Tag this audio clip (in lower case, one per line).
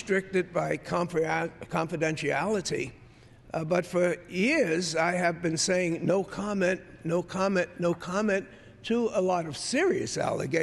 speech